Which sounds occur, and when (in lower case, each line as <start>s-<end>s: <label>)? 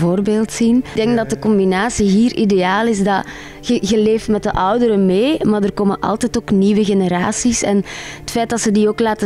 0.0s-9.2s: conversation
0.0s-9.2s: music
0.0s-3.2s: woman speaking
1.0s-1.5s: male speech
3.2s-3.6s: breathing
3.6s-7.8s: woman speaking
7.8s-8.2s: breathing
8.3s-9.2s: woman speaking